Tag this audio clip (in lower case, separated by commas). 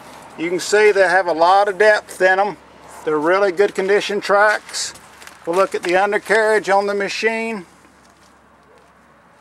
speech